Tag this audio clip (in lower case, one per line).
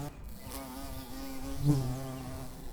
wild animals
animal
insect